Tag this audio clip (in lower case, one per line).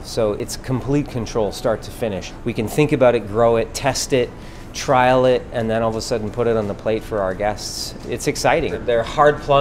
speech
music